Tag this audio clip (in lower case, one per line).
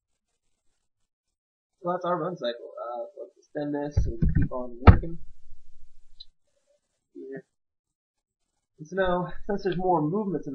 speech